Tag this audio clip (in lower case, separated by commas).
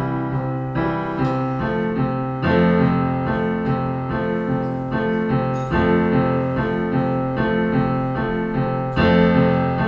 keyboard (musical), electric piano, piano